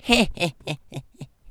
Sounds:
human voice
laughter

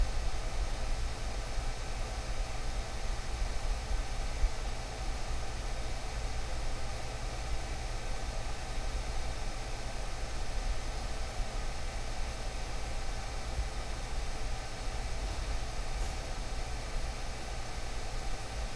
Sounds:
mechanical fan
mechanisms

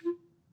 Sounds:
music
musical instrument
wind instrument

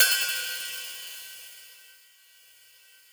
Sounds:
music
percussion
musical instrument
hi-hat
cymbal

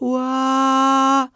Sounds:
male singing
singing
human voice

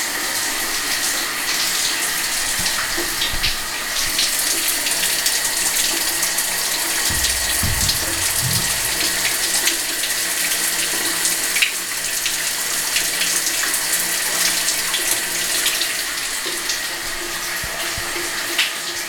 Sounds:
bathtub (filling or washing)
domestic sounds

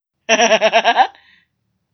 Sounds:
laughter
human voice

